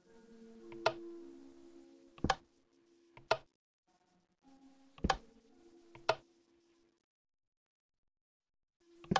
A ticktock noise